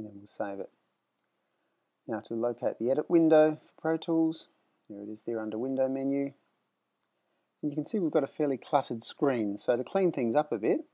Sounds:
speech

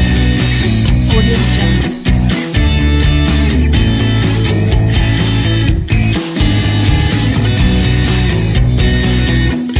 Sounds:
music

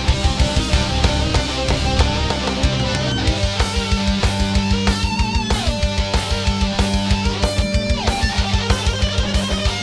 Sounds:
musical instrument, music, violin

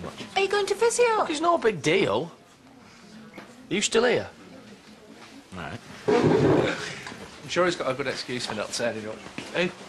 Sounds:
speech

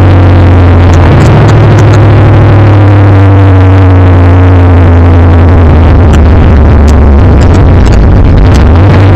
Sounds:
vehicle, car

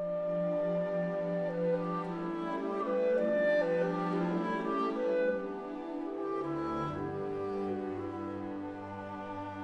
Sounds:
music

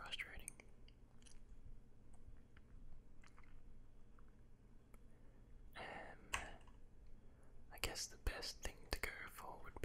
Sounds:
clicking, people whispering, whispering, speech

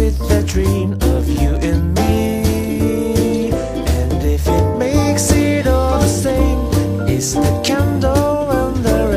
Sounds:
music

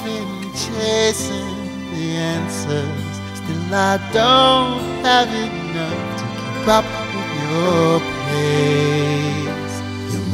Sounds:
music

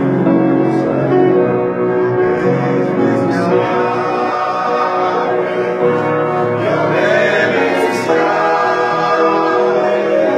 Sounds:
musical instrument, male singing, keyboard (musical), music, piano

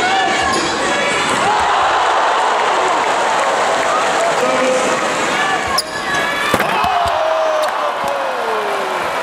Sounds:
basketball bounce

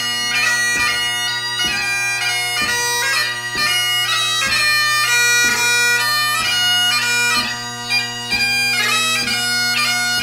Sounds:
music, bagpipes

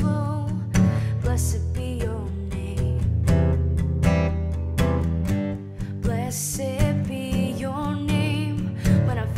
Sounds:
plucked string instrument, music, guitar, musical instrument, christian music, singing

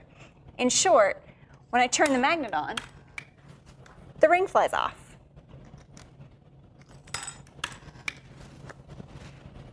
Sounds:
speech

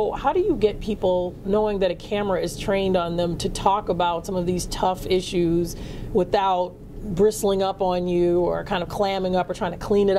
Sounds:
speech

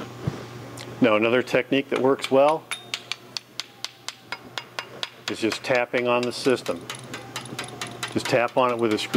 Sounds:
inside a large room or hall, speech

